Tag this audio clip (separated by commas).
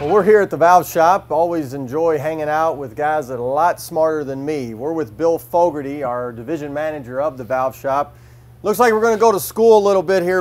Speech